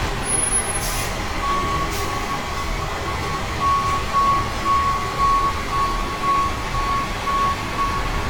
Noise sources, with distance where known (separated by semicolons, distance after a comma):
large-sounding engine, near; unidentified alert signal, near